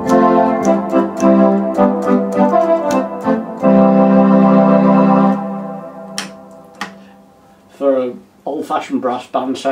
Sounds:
musical instrument, organ, piano, keyboard (musical), music, hammond organ, speech

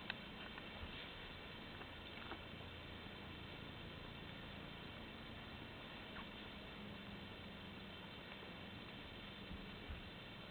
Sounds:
cat, pets, animal

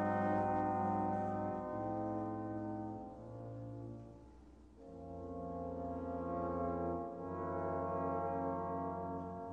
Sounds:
foghorn

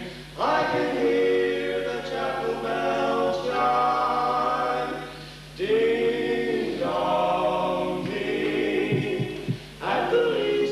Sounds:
music

